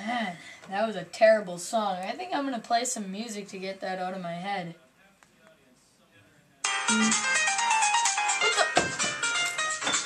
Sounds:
ringtone, speech, music

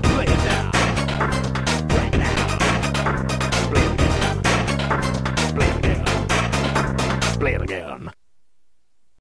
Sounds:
music

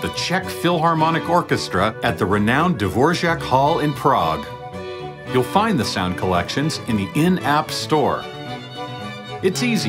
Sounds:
speech, music

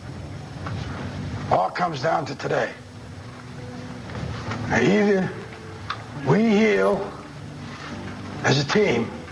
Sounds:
outside, urban or man-made, speech

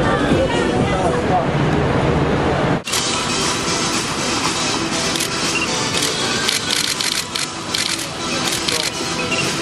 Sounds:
music, speech

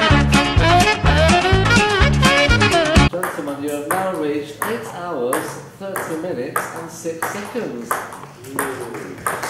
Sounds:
playing table tennis

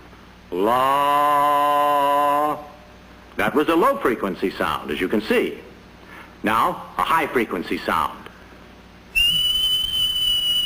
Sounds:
whistle

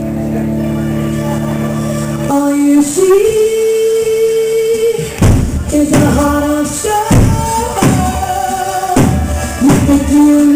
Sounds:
female singing, music

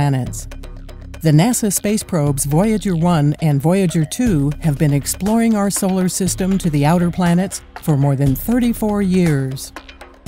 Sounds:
narration, speech, music

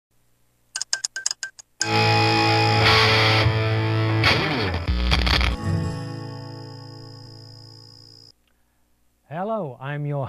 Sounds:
speech, music

